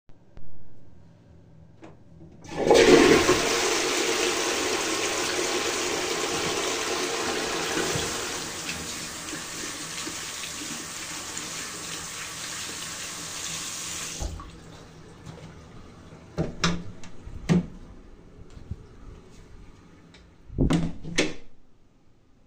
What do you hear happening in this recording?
I flushed the toilet and then washed my hands. Finally, I opened the toilet door, walked out, and closed the door again.